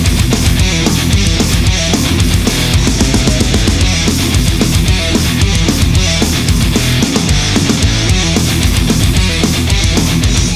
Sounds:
music

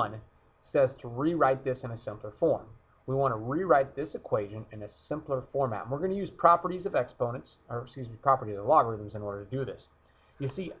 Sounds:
speech

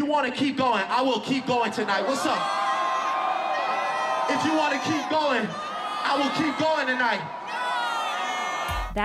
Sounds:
people booing

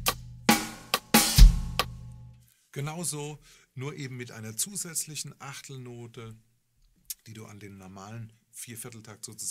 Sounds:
metronome

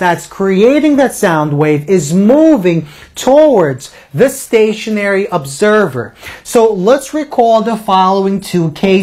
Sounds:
speech

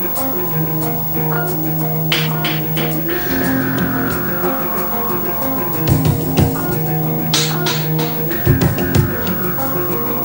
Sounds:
music

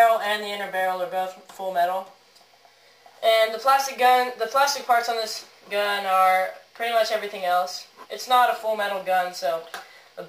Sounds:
speech

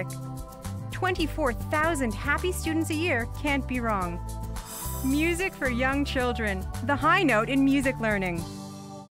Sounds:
music
background music
speech

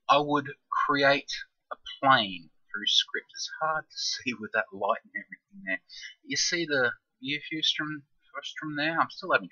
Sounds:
speech

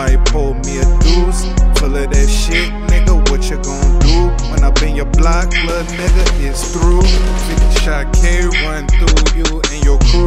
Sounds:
music
blues

